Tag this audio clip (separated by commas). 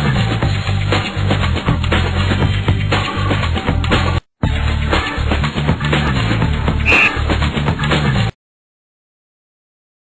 Music